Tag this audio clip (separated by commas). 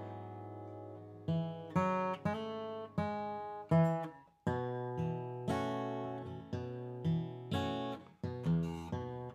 Plucked string instrument, Guitar, Music, Musical instrument, Acoustic guitar